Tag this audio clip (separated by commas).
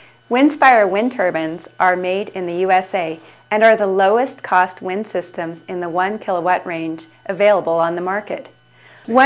Speech